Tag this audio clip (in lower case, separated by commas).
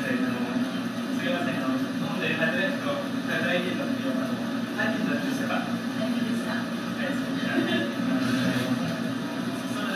conversation, speech, man speaking